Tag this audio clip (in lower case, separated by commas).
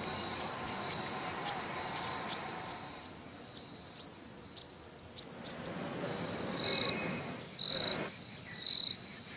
bird chirping, tweet, bird